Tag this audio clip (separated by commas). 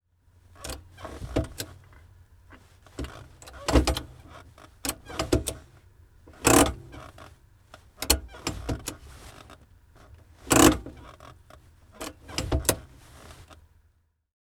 Vehicle, Motor vehicle (road)